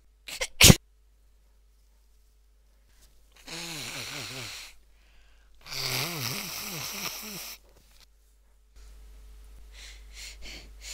A younger female sneezing then blowing her nose twice